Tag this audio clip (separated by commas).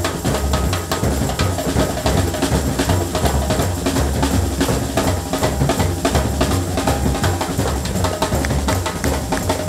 Drum, Drum kit, Musical instrument, Music, Bass drum